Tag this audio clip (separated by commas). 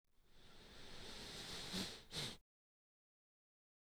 Respiratory sounds